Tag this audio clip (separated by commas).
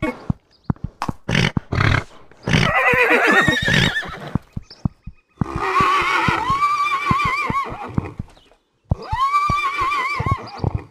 horse neighing